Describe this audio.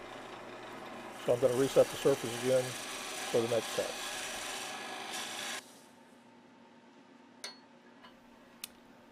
Wood scratching and being sanded as a man speaks